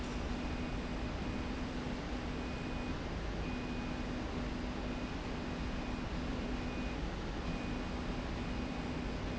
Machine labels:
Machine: slide rail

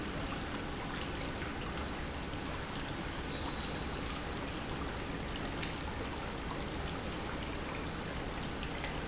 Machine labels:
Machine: pump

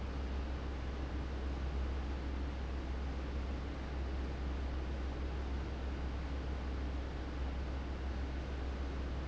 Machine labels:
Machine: fan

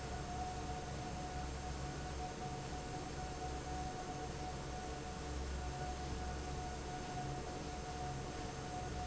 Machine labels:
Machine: fan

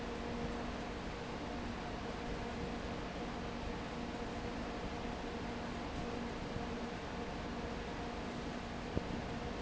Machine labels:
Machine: fan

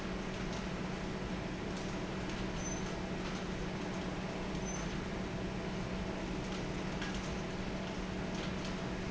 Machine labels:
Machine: fan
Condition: normal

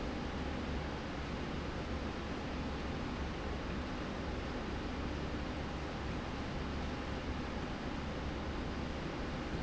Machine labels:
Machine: slide rail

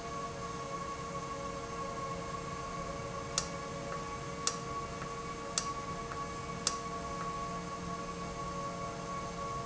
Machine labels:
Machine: valve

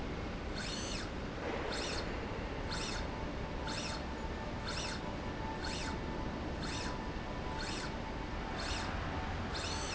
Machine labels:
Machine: slide rail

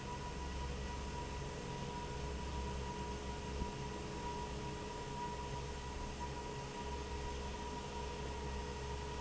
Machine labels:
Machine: fan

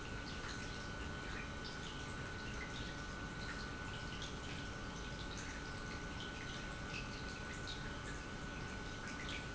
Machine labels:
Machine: pump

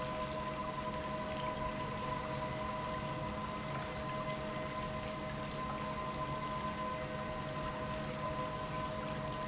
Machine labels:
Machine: pump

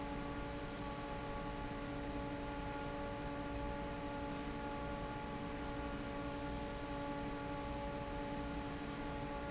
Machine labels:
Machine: fan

